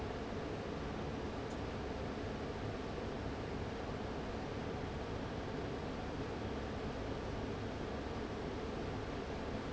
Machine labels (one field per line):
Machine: fan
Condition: abnormal